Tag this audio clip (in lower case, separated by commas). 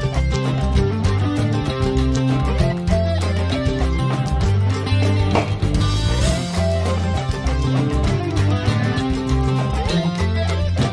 music